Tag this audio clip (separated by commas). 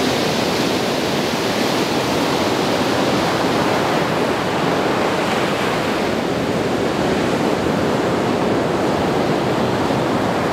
ocean burbling, Ocean